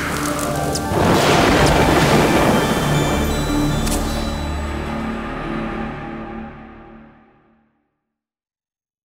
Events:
0.0s-8.3s: music
0.0s-8.3s: sound effect
0.2s-3.1s: thunderstorm

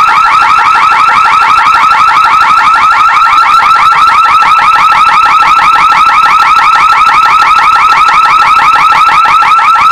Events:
0.0s-9.9s: alarm

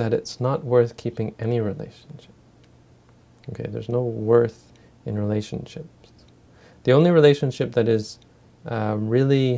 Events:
0.0s-2.3s: male speech
0.0s-9.5s: mechanisms
1.5s-1.6s: tick
1.7s-1.8s: tick
2.0s-2.1s: tick
2.6s-2.7s: tick
3.1s-3.1s: tick
3.4s-3.5s: tick
3.4s-4.7s: male speech
4.7s-4.8s: tick
4.7s-4.9s: breathing
5.0s-5.9s: male speech
6.0s-6.3s: human sounds
6.5s-6.8s: breathing
6.8s-8.2s: male speech
8.2s-8.3s: tick
8.6s-9.5s: male speech

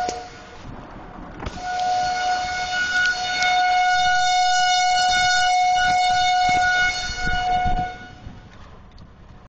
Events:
0.0s-0.6s: civil defense siren
0.0s-9.4s: car
0.0s-9.4s: wind
0.0s-0.1s: tick
0.6s-1.6s: wind noise (microphone)
1.4s-1.8s: power windows
1.5s-8.4s: civil defense siren
1.7s-1.8s: tick
1.9s-2.6s: wind noise (microphone)
3.0s-3.1s: tick
3.3s-3.5s: tick
5.0s-5.5s: wind noise (microphone)
5.7s-6.3s: wind noise (microphone)
6.4s-8.5s: wind noise (microphone)
8.5s-8.6s: tick
8.8s-9.1s: tick

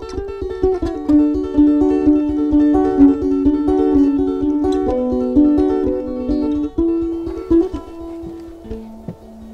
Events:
0.0s-9.5s: music

